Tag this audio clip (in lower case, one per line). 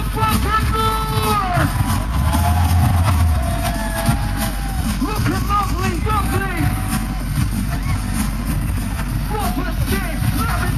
pop music
speech
rhythm and blues
music